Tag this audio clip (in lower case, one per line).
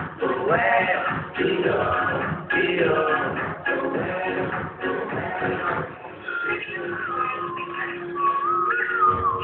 synthetic singing
male singing
speech
music